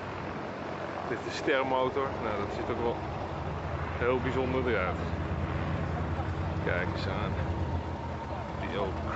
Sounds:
speech

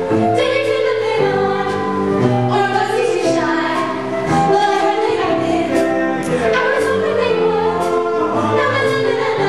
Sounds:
music

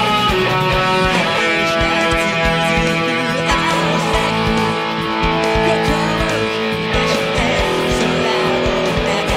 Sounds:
strum, guitar, musical instrument, plucked string instrument, music, electric guitar

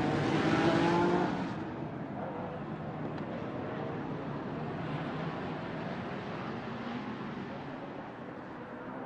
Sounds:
vehicle, car

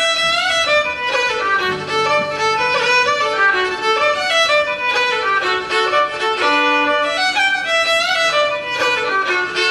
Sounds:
musical instrument, violin, music

